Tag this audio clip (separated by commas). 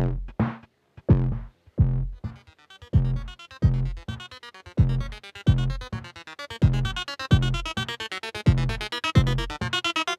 Electronic dance music, Music